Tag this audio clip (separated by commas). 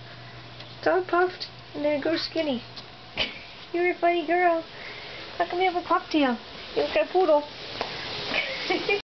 Speech